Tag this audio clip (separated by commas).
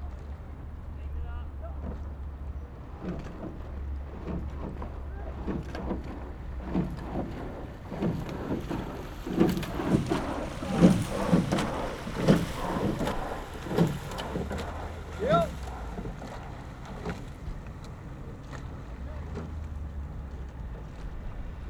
Boat, Vehicle